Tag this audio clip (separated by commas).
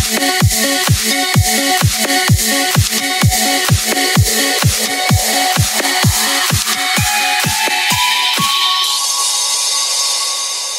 Music